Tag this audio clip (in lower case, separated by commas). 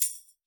music, percussion, musical instrument, tambourine